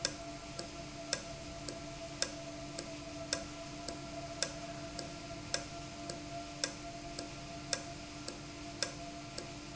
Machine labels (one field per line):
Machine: valve